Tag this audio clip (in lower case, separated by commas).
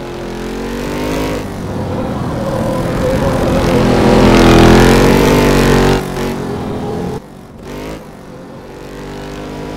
vehicle